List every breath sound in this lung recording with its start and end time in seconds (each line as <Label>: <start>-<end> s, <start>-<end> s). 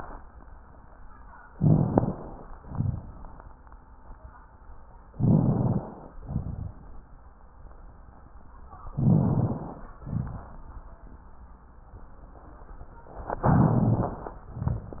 Inhalation: 1.50-2.41 s, 5.10-6.09 s, 8.97-9.96 s, 13.47-14.46 s
Exhalation: 2.56-3.13 s, 6.22-6.79 s, 10.04-10.61 s
Crackles: 1.50-2.41 s, 2.56-3.13 s, 5.10-6.09 s, 6.22-6.79 s, 8.97-9.96 s, 10.04-10.61 s, 13.47-14.46 s